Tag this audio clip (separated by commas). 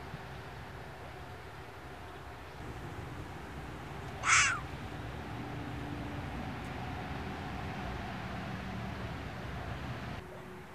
fox barking